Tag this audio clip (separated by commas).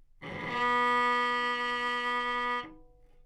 Musical instrument, Music, Bowed string instrument